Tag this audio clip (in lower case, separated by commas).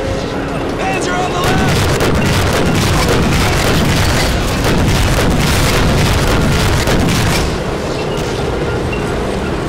speech